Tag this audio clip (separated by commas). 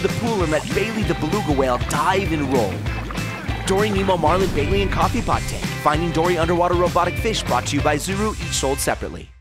Speech, Music